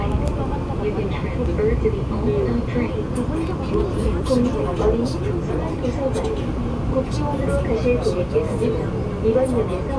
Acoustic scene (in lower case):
subway train